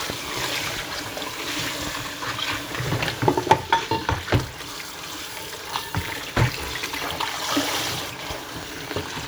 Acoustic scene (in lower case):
kitchen